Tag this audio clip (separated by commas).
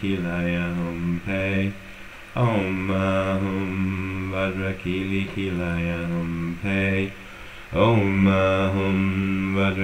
Mantra